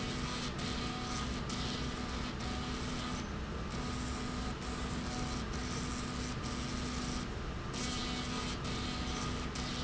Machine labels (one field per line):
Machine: slide rail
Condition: abnormal